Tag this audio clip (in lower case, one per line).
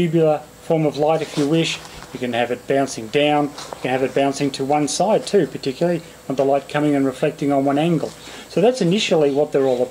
speech